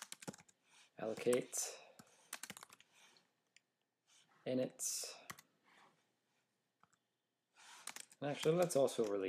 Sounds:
Sigh, Speech

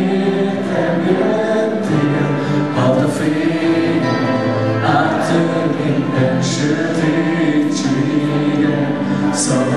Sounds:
Music

